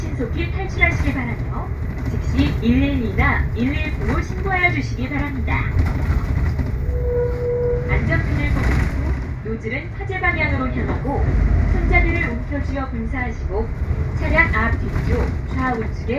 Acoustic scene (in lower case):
bus